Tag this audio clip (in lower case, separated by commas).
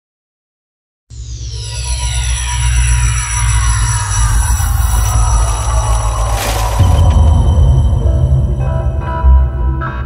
music